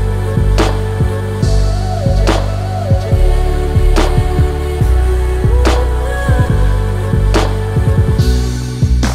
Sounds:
music

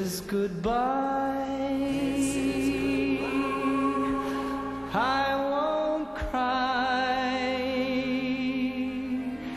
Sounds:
music

